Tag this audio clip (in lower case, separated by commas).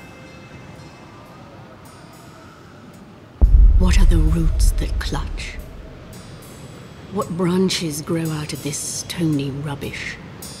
speech, music